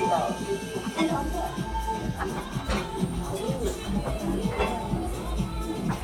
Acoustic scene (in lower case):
restaurant